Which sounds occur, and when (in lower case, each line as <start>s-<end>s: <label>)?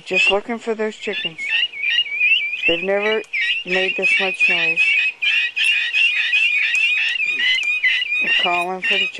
0.0s-1.4s: man speaking
0.0s-9.1s: bird song
0.0s-9.1s: conversation
2.7s-3.2s: man speaking
2.8s-2.9s: tick
3.2s-3.3s: tick
3.6s-4.8s: man speaking
6.7s-6.8s: tick
7.3s-7.5s: man speaking
7.5s-7.7s: tick
8.2s-9.1s: man speaking